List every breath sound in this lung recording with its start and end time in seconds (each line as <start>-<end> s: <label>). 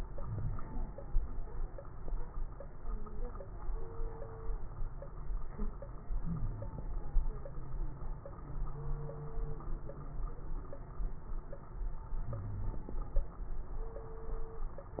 0.00-0.96 s: inhalation
0.20-0.61 s: wheeze
6.17-6.68 s: wheeze
12.30-12.81 s: wheeze